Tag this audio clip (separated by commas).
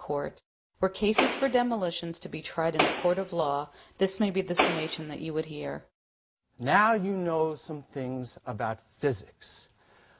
Speech